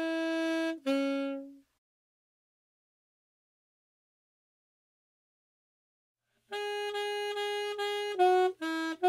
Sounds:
playing saxophone

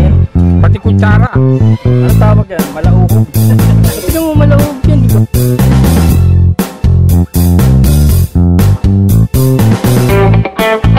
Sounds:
speech, music

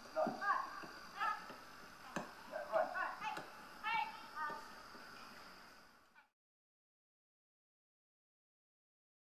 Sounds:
speech

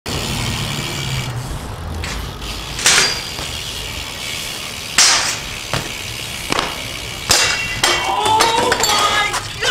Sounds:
whack

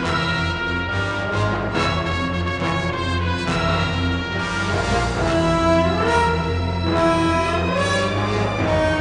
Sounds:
music

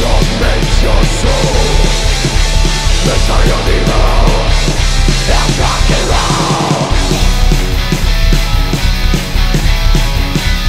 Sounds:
music, rock and roll, heavy metal, punk rock, rock music

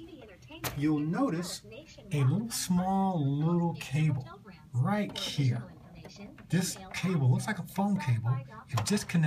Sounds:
speech, television

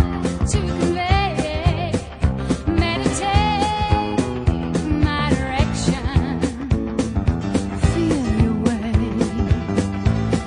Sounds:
music, soul music

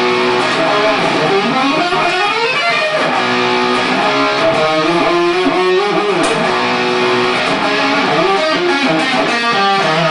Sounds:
music

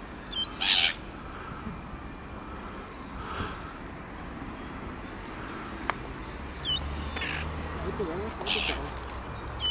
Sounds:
speech, crow, caw

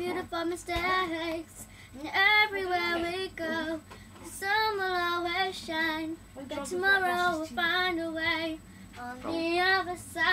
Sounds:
speech, female singing, child singing

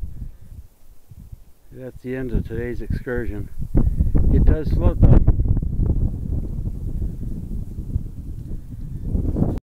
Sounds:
speech

